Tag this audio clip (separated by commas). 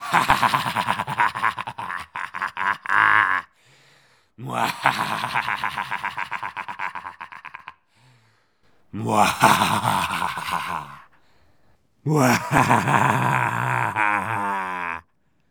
Human voice, Laughter